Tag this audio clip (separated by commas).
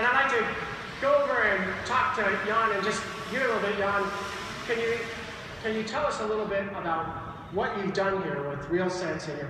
Speech